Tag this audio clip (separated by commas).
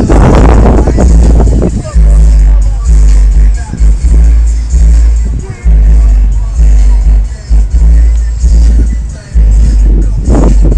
Music, Speech